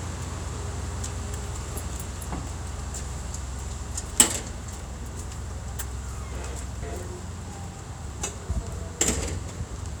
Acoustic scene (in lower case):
street